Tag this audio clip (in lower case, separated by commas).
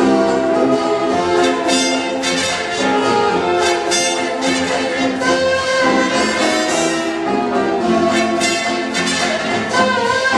music, orchestra